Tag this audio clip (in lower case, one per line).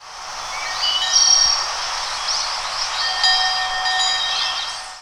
animal
bell
bird
wild animals